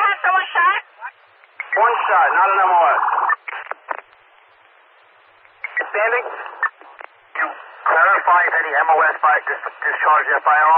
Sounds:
police radio chatter

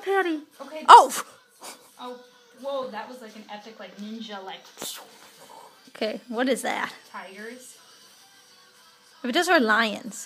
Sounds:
inside a small room, speech

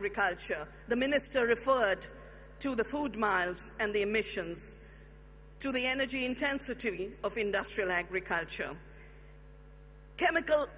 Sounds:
speech, woman speaking

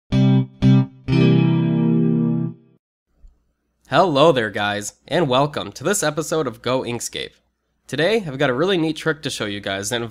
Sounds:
effects unit, inside a small room, music, speech

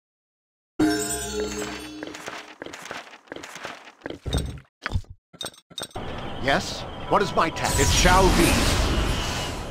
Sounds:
music, speech

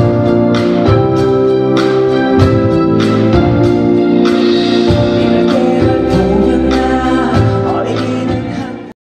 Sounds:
fiddle, musical instrument, music

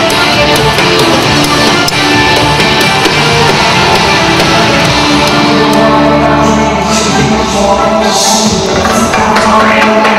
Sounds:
music

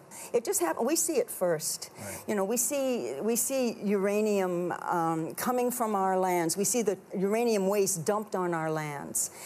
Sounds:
inside a large room or hall, speech

